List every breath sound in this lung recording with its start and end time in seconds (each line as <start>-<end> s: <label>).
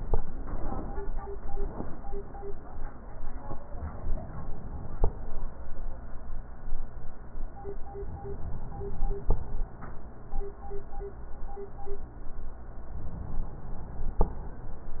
3.50-5.00 s: inhalation
7.79-9.29 s: inhalation
12.75-14.25 s: inhalation